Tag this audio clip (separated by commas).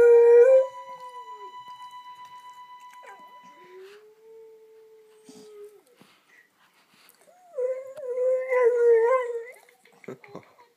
Dog, canids, Domestic animals, Animal